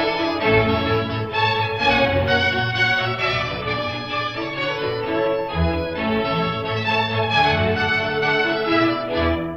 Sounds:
music
fiddle
bowed string instrument
musical instrument

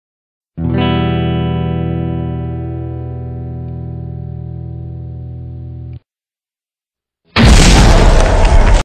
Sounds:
musical instrument
strum
guitar
music

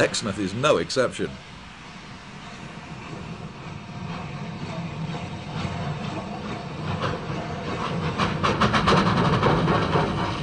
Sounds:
speech

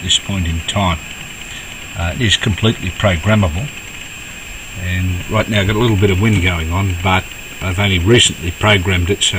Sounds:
speech

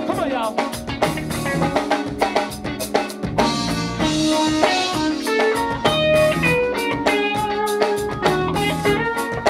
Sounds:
exciting music
music

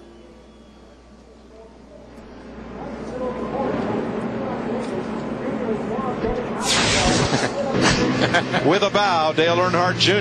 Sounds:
revving
engine
vehicle
speech
car
medium engine (mid frequency)

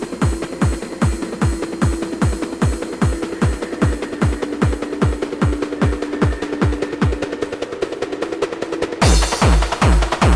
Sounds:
music
sound effect

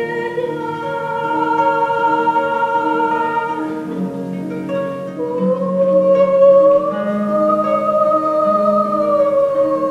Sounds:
song
music
classical music
harp
musical instrument

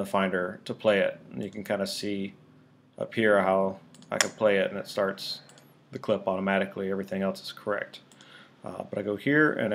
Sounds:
speech

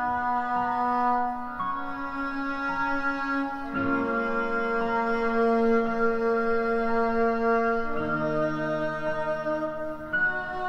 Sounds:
music
musical instrument

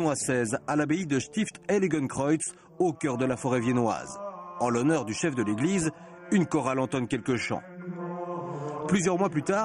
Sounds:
speech
mantra

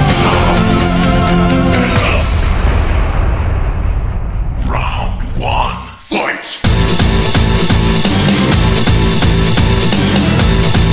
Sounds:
electronic music
dubstep
music

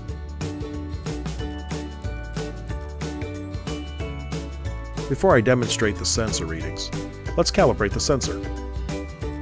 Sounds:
music
speech

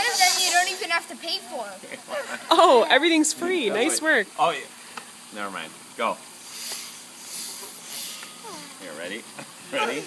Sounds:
speech

